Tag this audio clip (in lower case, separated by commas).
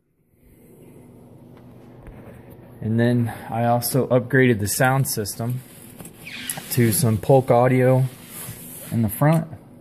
speech